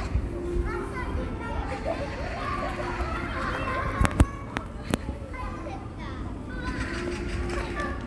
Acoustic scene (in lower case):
park